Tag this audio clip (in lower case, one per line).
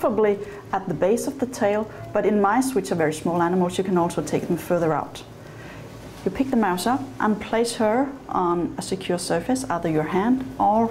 speech